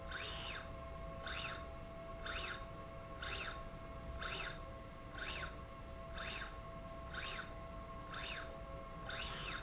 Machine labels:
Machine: slide rail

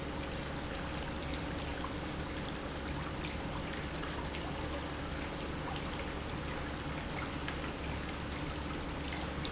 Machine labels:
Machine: pump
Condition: normal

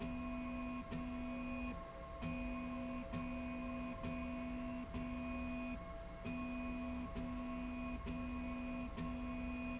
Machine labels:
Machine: slide rail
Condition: normal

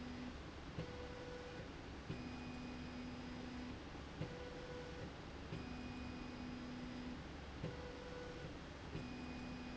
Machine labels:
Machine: slide rail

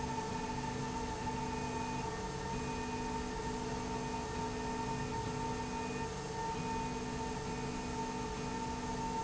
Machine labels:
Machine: slide rail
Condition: normal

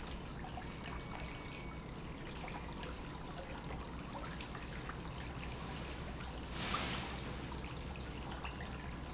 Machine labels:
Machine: pump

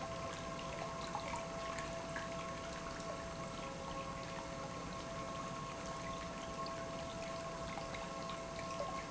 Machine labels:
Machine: pump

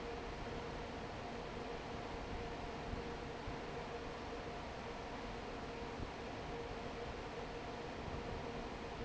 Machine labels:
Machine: fan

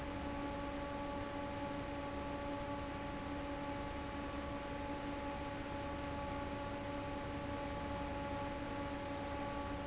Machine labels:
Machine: fan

